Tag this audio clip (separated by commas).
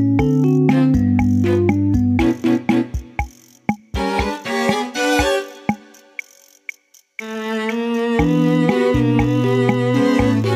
Music